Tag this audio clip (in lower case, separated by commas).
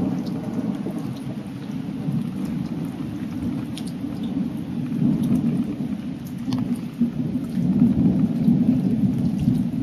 rain, thunderstorm, thunder, raining, raindrop